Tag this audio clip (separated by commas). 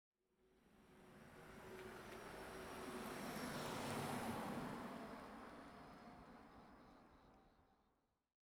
Vehicle, Car, Traffic noise, Car passing by, Motor vehicle (road)